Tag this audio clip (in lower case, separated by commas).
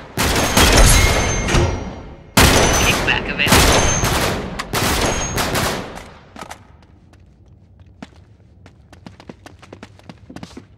boom, speech